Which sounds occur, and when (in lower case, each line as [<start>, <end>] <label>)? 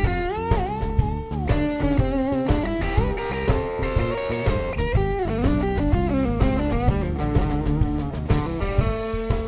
[0.01, 9.45] music